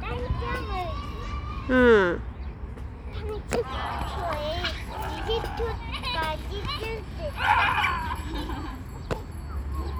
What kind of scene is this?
park